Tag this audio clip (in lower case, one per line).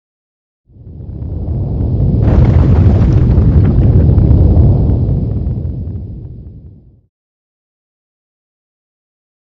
sound effect